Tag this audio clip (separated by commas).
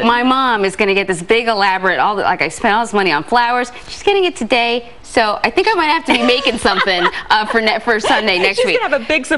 Speech